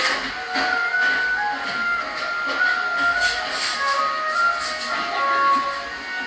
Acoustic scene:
cafe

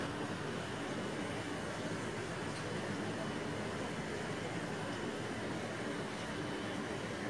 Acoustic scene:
park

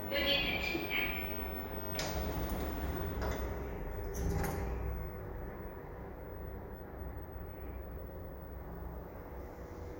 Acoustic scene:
elevator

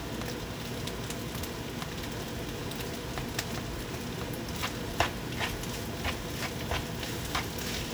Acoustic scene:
kitchen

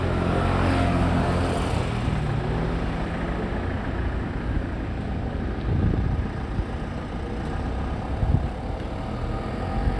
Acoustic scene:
residential area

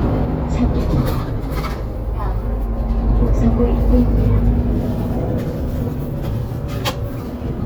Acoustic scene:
bus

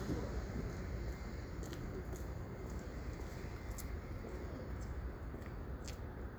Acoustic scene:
residential area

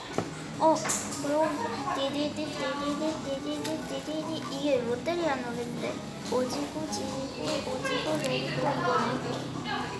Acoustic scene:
cafe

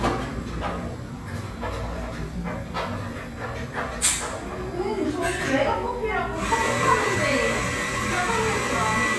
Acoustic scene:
cafe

